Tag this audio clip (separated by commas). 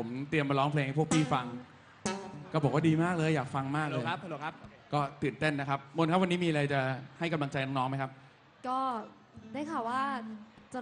Music, Speech